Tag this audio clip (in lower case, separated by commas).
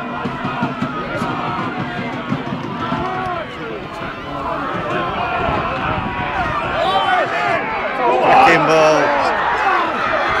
speech